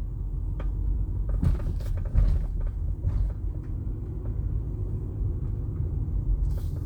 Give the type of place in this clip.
car